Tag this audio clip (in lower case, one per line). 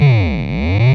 musical instrument
music